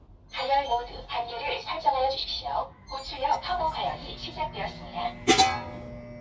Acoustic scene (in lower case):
kitchen